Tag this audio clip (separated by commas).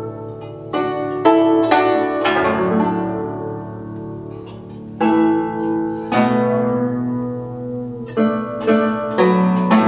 playing zither